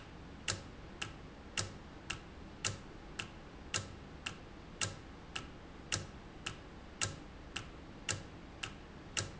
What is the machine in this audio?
valve